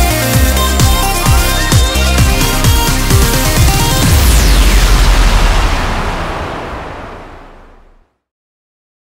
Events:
0.0s-7.0s: music
4.0s-8.3s: sound effect

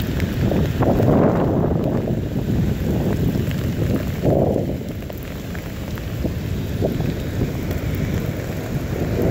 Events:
0.0s-0.6s: wind noise (microphone)
0.0s-9.3s: rain
0.0s-9.3s: wind
0.1s-2.4s: thunder
2.6s-4.0s: wind noise (microphone)
4.1s-4.8s: thunder
6.8s-8.5s: wind noise (microphone)

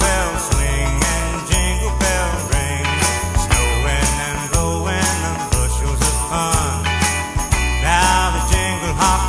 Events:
0.0s-2.8s: male singing
0.0s-9.2s: music
3.5s-6.8s: male singing
7.7s-9.2s: male singing

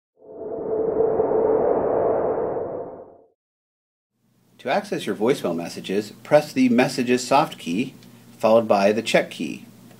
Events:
0.1s-3.3s: sound effect
4.1s-9.9s: mechanisms
4.6s-6.1s: male speech
6.2s-7.9s: male speech
8.0s-8.1s: clicking
8.4s-9.6s: male speech
9.9s-9.9s: clicking

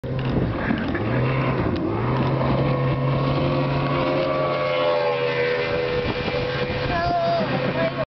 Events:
0.0s-0.4s: vroom
0.0s-8.0s: motorboat
0.0s-8.0s: water
0.1s-0.3s: generic impact sounds
0.5s-0.9s: generic impact sounds
0.9s-1.7s: vroom
1.5s-1.8s: generic impact sounds
1.8s-6.0s: vroom
2.1s-2.3s: generic impact sounds
3.7s-3.9s: generic impact sounds
5.6s-7.1s: wind noise (microphone)
6.8s-7.4s: kid speaking
7.3s-7.8s: laughter
7.7s-8.0s: kid speaking
7.8s-7.9s: generic impact sounds

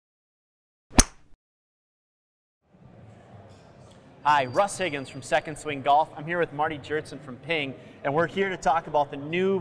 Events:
0.8s-1.3s: sound effect
2.6s-9.6s: mechanisms
2.9s-9.6s: hubbub
3.8s-3.9s: human sounds
4.1s-5.8s: squeal
7.7s-7.9s: breathing

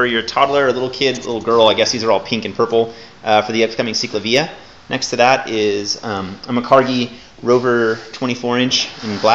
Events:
0.0s-9.3s: background noise
0.0s-2.9s: male speech
3.2s-4.5s: male speech
4.8s-7.0s: male speech
7.3s-9.3s: male speech

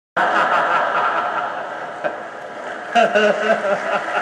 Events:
0.1s-1.4s: laughter
0.1s-4.2s: mechanisms
2.0s-2.2s: laughter
2.5s-2.5s: mechanisms
2.9s-4.2s: laughter

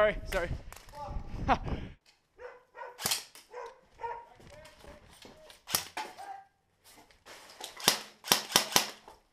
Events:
0.0s-0.5s: male speech
0.0s-0.7s: wind noise (microphone)
0.0s-9.3s: background noise
0.7s-1.0s: generic impact sounds
0.9s-1.2s: human voice
1.1s-1.9s: wind noise (microphone)
1.2s-1.5s: generic impact sounds
1.4s-1.6s: human voice
1.6s-2.2s: generic impact sounds
2.3s-3.0s: bark
2.9s-3.7s: generic impact sounds
3.5s-3.8s: bark
3.9s-4.3s: bark
4.2s-5.4s: male speech
4.3s-5.1s: generic impact sounds
4.3s-5.6s: footsteps
5.2s-5.3s: generic impact sounds
5.4s-5.6s: generic impact sounds
5.6s-5.9s: cap gun
5.9s-6.0s: generic impact sounds
6.1s-6.4s: human voice
6.8s-7.1s: generic impact sounds
6.8s-7.1s: footsteps
7.2s-7.8s: generic impact sounds
7.6s-7.7s: footsteps
7.8s-8.1s: cap gun
8.2s-8.9s: cap gun
9.0s-9.2s: generic impact sounds

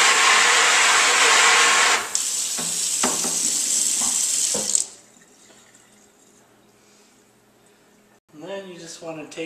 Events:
0.0s-5.1s: sink (filling or washing)
0.0s-9.4s: mechanisms
2.4s-2.5s: dishes, pots and pans
2.8s-3.2s: dishes, pots and pans
3.9s-4.1s: dishes, pots and pans
4.4s-4.6s: dishes, pots and pans
5.0s-5.7s: surface contact
5.8s-6.3s: surface contact
6.5s-7.0s: breathing
7.4s-8.1s: breathing
8.2s-9.4s: male speech

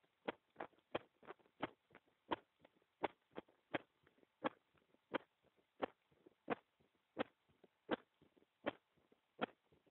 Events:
0.0s-9.9s: background noise
0.3s-0.7s: heart sounds
0.9s-1.4s: heart sounds
1.6s-2.0s: heart sounds
2.3s-2.7s: heart sounds
3.0s-3.4s: heart sounds
3.7s-4.2s: heart sounds
4.4s-4.9s: heart sounds
5.1s-5.6s: heart sounds
5.8s-6.3s: heart sounds
6.5s-7.0s: heart sounds
7.2s-7.7s: heart sounds
7.9s-8.5s: heart sounds
8.6s-9.2s: heart sounds
9.4s-9.9s: heart sounds

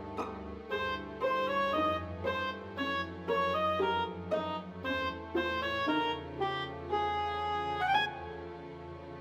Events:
0.0s-9.2s: music

